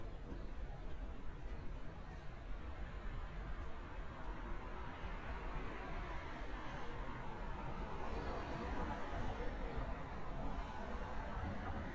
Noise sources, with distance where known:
medium-sounding engine, far

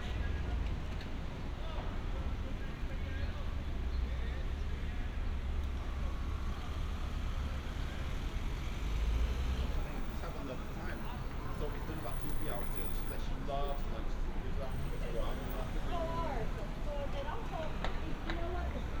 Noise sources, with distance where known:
medium-sounding engine, far; person or small group talking

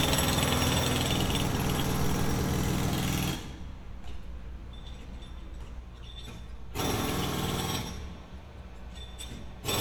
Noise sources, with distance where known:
jackhammer, near

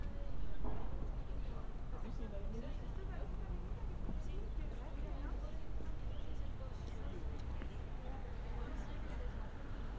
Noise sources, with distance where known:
unidentified human voice

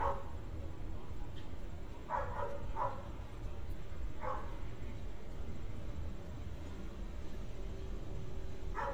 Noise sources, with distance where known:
dog barking or whining

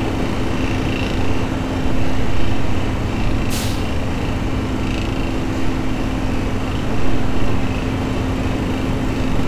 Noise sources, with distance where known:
large rotating saw

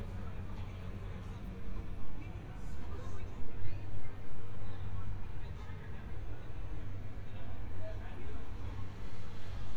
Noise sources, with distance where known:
person or small group talking, far

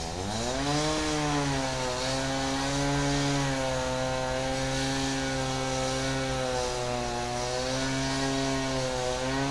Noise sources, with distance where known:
engine of unclear size, near

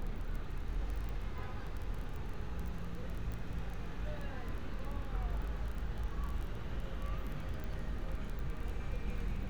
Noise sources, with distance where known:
engine of unclear size; car horn, far; person or small group talking, far

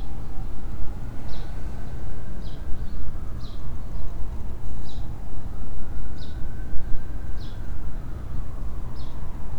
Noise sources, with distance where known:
siren, far

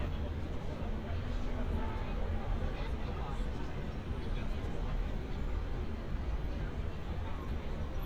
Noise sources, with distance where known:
car horn, far; person or small group talking, near

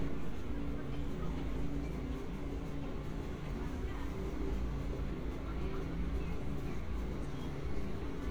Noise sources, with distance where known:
small-sounding engine; person or small group talking, near

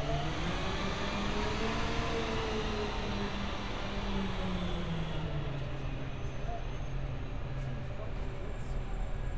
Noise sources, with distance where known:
large-sounding engine, near

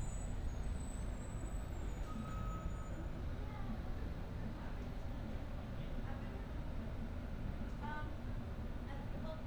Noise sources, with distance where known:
large-sounding engine, far; person or small group talking, far

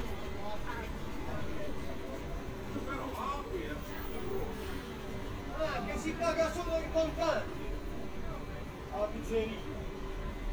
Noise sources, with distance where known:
person or small group talking, near

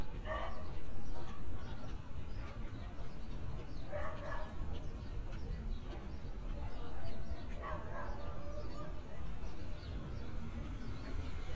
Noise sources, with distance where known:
person or small group talking, far; dog barking or whining, far

